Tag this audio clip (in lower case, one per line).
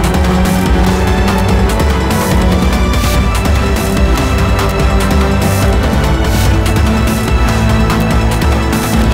music
soundtrack music